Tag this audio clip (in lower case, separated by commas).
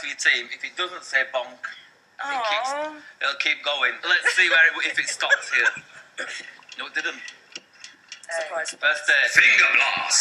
inside a small room, speech